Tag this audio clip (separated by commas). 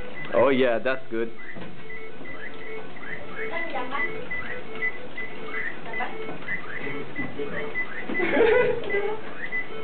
Speech, Music